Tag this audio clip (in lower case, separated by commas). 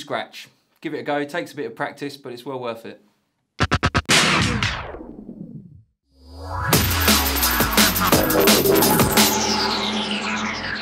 house music, electronic music, speech, scratching (performance technique), music